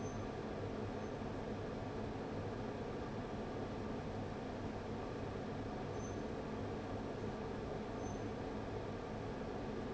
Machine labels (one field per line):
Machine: fan